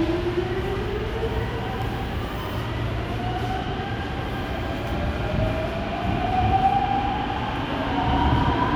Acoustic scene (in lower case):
subway station